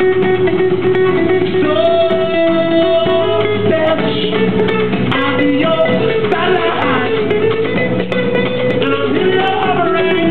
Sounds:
music

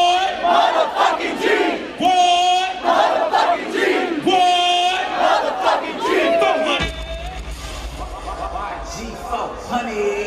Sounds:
speech

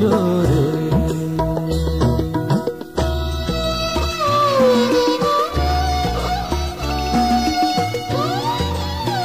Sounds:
music

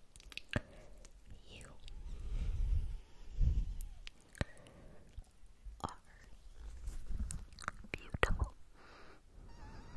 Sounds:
people whispering

